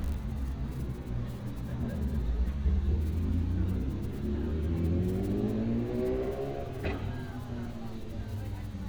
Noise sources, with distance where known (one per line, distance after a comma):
medium-sounding engine, far
person or small group talking, far